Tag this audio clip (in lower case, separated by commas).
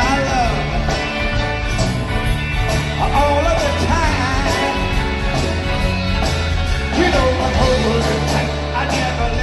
singing, rock and roll